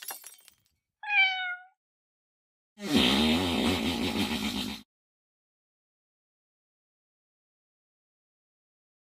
Cat meowing then a farting noise